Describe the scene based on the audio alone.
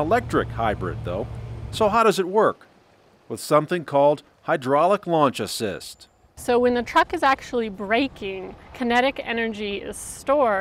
Man speaking followed women speaking